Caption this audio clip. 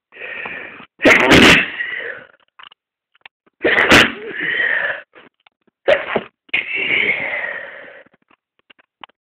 A few raspy sneezing sounds